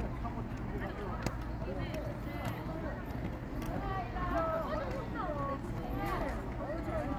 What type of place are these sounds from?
park